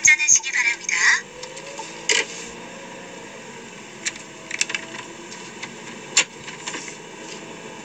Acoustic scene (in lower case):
car